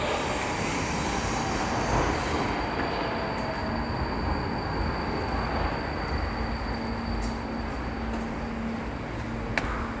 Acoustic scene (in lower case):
subway station